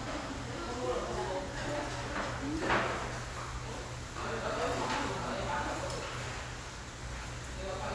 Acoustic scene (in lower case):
restaurant